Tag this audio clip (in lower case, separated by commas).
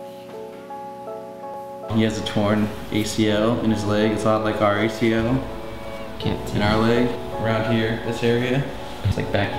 speech, music